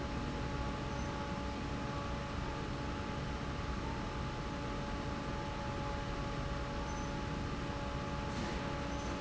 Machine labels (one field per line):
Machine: fan